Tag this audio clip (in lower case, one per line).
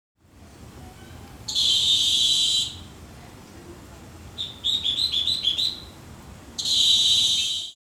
bird
animal
wild animals